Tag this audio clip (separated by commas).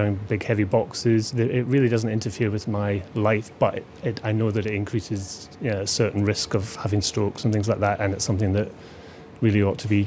Speech